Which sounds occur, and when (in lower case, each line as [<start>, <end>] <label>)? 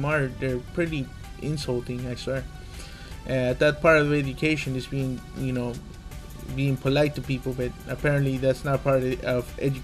[0.00, 0.61] man speaking
[0.00, 9.83] music
[0.75, 1.10] man speaking
[1.39, 2.42] man speaking
[2.63, 3.20] breathing
[3.26, 5.76] man speaking
[6.44, 7.68] man speaking
[7.89, 9.83] man speaking